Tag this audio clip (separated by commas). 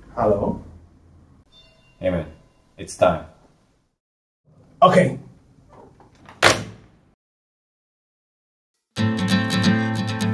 Speech, Music